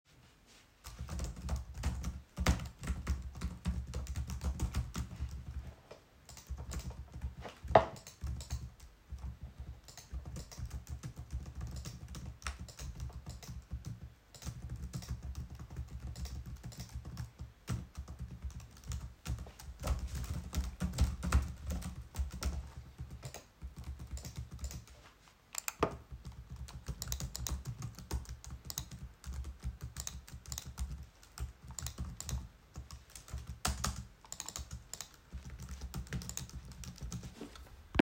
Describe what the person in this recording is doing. I type on my keyboard continuosly while clicking with my mouse from time to time, while I am typing.